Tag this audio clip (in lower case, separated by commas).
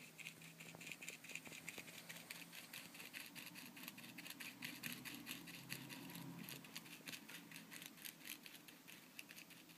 writing